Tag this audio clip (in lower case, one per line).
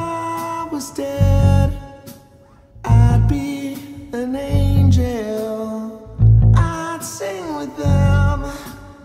music